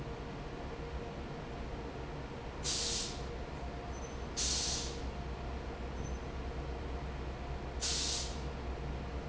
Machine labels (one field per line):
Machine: fan